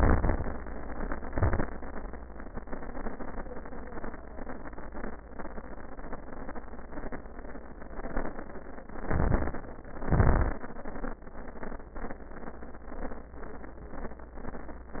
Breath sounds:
0.00-0.74 s: inhalation
0.00-0.74 s: crackles
1.22-1.72 s: exhalation
1.22-1.72 s: crackles
9.00-9.67 s: inhalation
9.00-9.67 s: crackles
9.99-10.65 s: exhalation
9.99-10.65 s: crackles

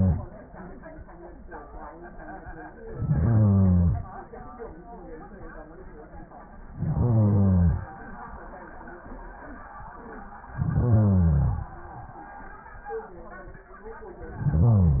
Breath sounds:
2.78-4.28 s: inhalation
6.65-7.93 s: inhalation
10.45-11.73 s: inhalation
14.28-15.00 s: inhalation

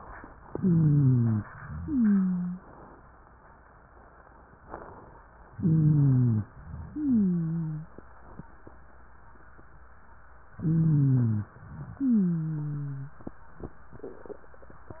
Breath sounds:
0.46-1.46 s: inhalation
0.46-1.46 s: wheeze
1.71-2.66 s: wheeze
5.50-6.51 s: inhalation
5.50-6.51 s: wheeze
6.91-7.91 s: wheeze
10.55-11.56 s: inhalation
10.55-11.56 s: wheeze
11.97-13.24 s: wheeze

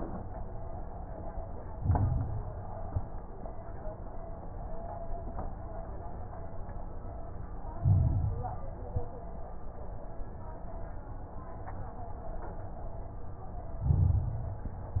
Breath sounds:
1.71-2.73 s: inhalation
1.71-2.73 s: crackles
2.79-3.17 s: exhalation
2.79-3.17 s: crackles
7.73-8.76 s: inhalation
7.73-8.76 s: crackles
8.82-9.20 s: exhalation
8.82-9.20 s: crackles
13.81-14.84 s: inhalation
13.81-14.84 s: crackles

